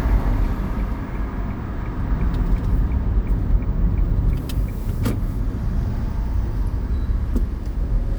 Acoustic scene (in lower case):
car